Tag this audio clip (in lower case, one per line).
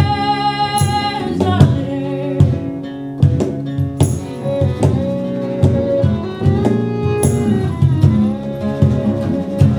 music
flamenco
singing